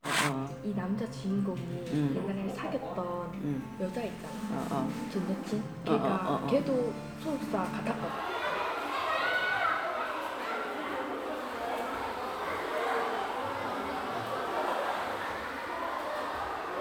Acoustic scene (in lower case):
crowded indoor space